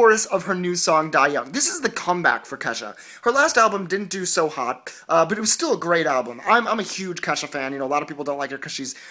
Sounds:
Speech

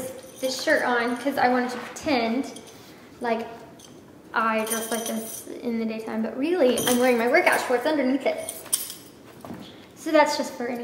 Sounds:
Speech, inside a small room

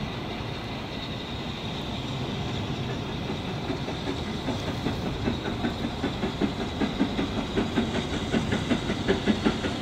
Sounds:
Train, Rail transport, train wagon, Vehicle

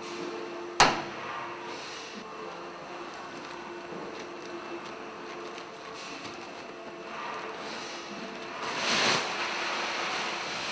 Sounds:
inside a large room or hall

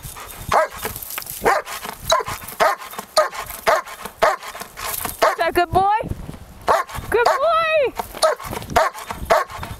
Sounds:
Domestic animals, Yip, Animal, Speech, Dog, Bow-wow

